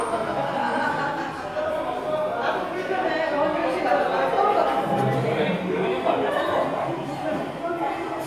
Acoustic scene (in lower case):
crowded indoor space